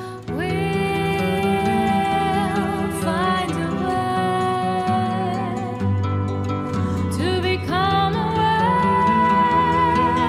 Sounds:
music

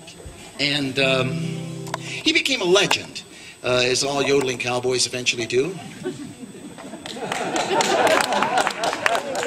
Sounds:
speech

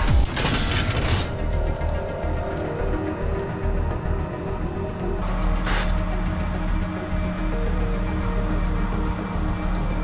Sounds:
music

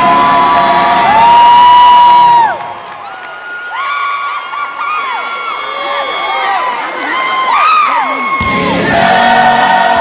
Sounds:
speech
music

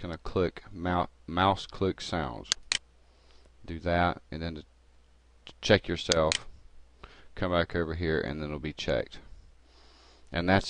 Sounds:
speech

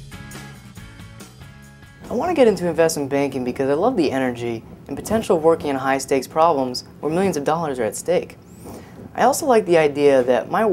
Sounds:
music
speech

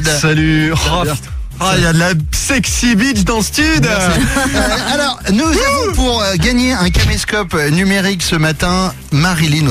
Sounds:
radio
speech
music

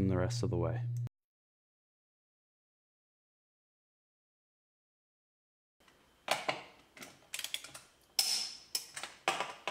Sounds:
inside a small room
speech

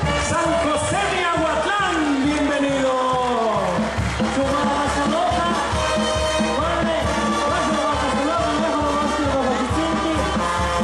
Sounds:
speech
music

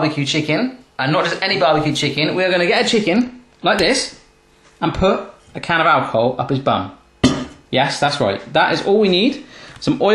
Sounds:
speech

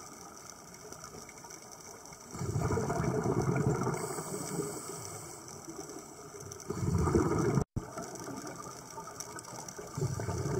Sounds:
scuba diving

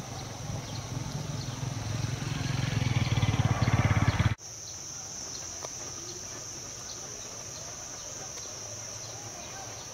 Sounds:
bird
chirp
bird song

